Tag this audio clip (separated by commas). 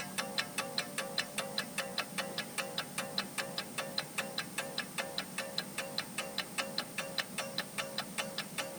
Mechanisms, Clock